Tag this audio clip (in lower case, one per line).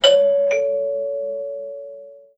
home sounds
door
alarm
doorbell